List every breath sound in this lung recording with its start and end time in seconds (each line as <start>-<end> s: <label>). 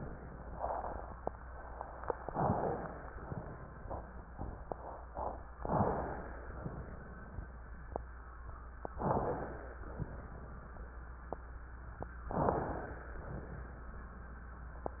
2.22-2.88 s: wheeze
2.22-3.13 s: inhalation
3.21-3.87 s: exhalation
5.60-6.39 s: inhalation
5.60-6.39 s: wheeze
6.61-7.40 s: exhalation
8.99-9.78 s: inhalation
8.99-9.78 s: wheeze
9.92-10.71 s: exhalation
12.28-13.06 s: inhalation
12.28-13.06 s: wheeze
13.14-13.87 s: exhalation